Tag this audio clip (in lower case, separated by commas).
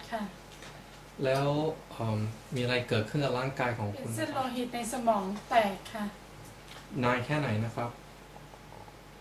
speech